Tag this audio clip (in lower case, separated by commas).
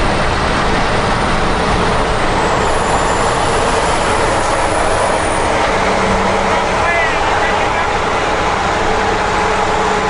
truck, speech, vehicle